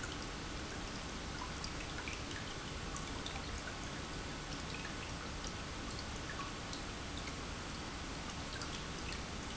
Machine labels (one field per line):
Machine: pump